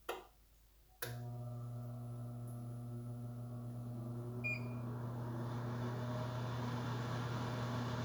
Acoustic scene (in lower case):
kitchen